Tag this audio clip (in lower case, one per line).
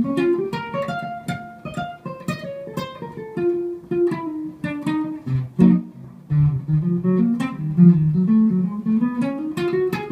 plucked string instrument
inside a small room
musical instrument
guitar
music